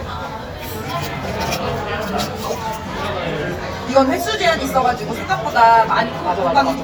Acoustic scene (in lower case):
restaurant